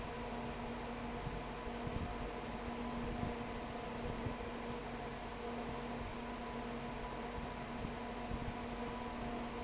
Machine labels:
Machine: fan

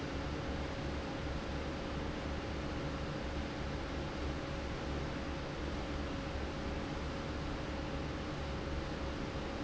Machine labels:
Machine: fan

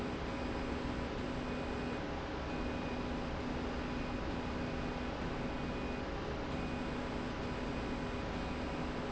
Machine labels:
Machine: slide rail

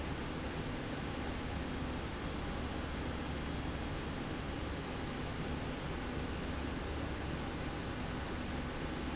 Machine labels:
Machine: slide rail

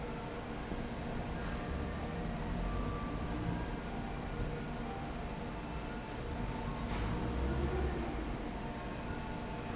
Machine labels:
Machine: fan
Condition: abnormal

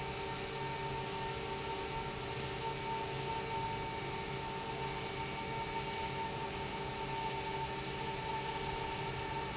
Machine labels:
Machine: pump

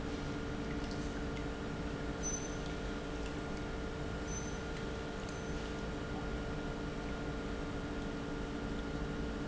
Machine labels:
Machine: pump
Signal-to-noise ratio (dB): -6 dB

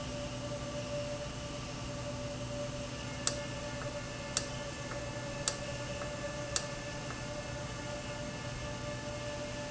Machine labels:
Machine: valve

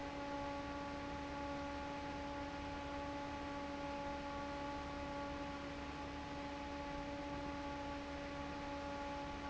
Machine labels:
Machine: fan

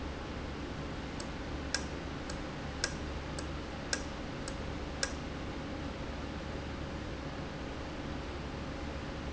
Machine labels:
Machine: valve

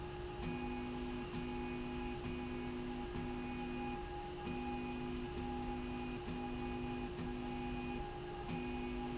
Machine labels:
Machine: slide rail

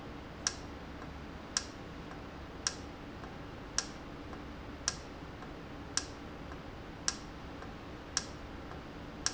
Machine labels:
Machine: valve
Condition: normal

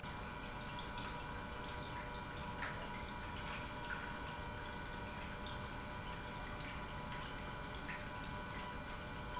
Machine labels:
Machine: pump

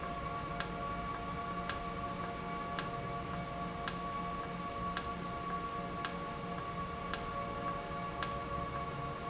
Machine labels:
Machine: valve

